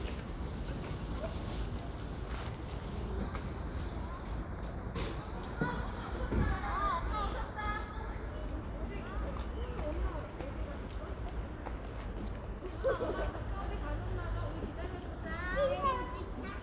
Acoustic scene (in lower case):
residential area